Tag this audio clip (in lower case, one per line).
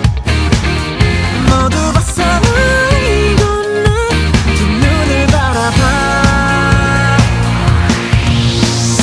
music
pop music